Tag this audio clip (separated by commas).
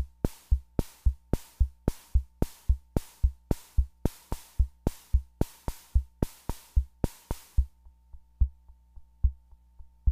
Drum machine, Music, Musical instrument